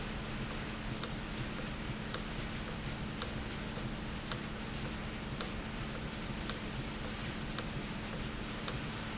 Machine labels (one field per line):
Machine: valve